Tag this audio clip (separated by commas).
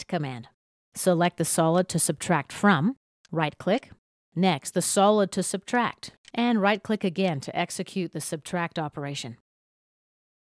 Speech